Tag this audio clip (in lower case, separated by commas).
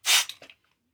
liquid